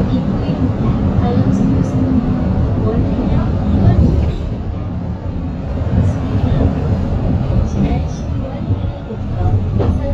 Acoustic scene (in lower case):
bus